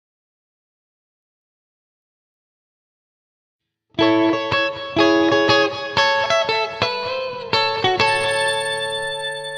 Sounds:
tinkle

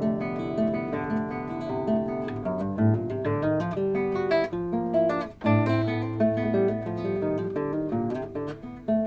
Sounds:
Guitar, Mandolin, Music, Musical instrument, Plucked string instrument

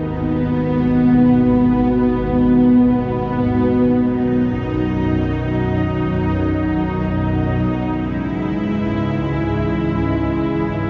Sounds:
Music

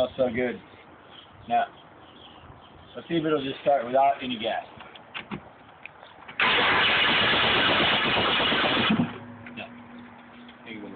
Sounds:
Speech, Vehicle

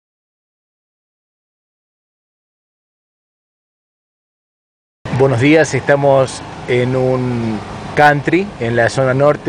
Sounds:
Speech

